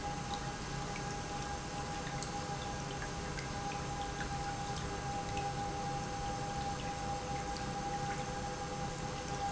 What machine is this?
pump